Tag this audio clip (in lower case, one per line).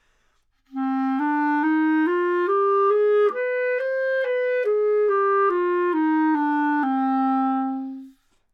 music
wind instrument
musical instrument